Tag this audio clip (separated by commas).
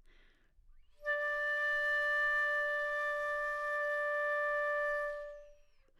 Wind instrument, Music, Musical instrument